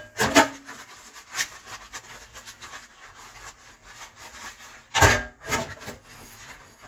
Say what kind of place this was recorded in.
kitchen